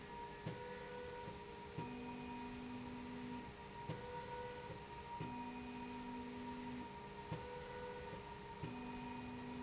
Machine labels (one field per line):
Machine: slide rail